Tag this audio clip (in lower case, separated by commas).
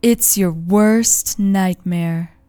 human voice, woman speaking, speech